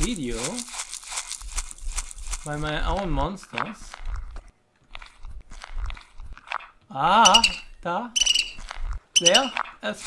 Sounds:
Speech

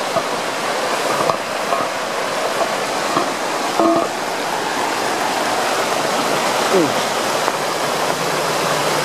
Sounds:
Waterfall

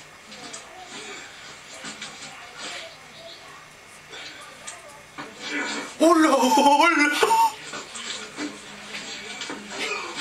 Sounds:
Speech

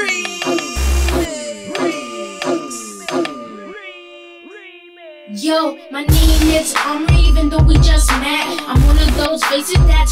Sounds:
Music, Tender music

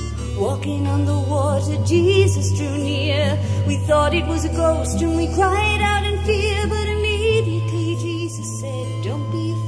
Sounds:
Music

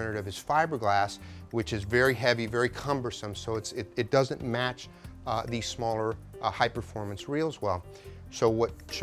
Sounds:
Music, Speech

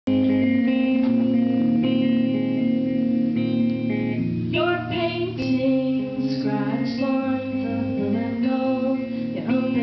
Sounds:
Music, Singing

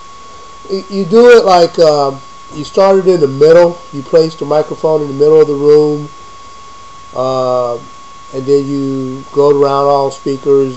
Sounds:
Speech

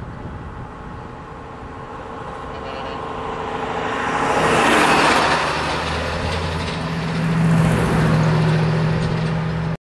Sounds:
Vehicle, Truck

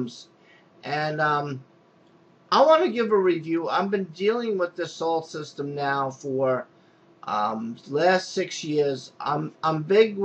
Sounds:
Speech

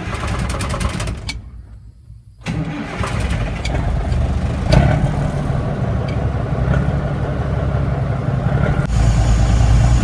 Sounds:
Vehicle, Truck

